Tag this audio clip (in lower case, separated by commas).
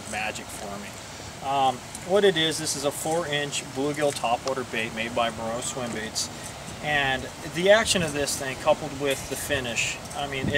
speech